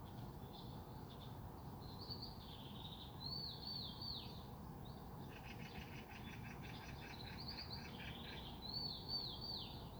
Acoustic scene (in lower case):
park